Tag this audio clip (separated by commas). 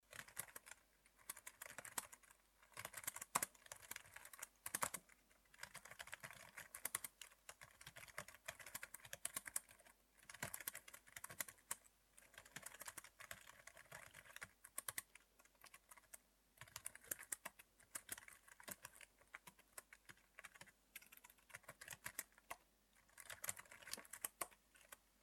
Typing, Computer keyboard, home sounds